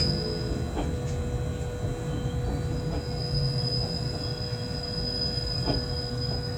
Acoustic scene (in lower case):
subway train